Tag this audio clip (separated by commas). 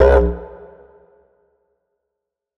Musical instrument, Music